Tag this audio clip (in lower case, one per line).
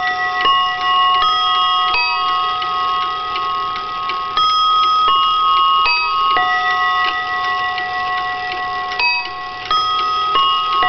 chime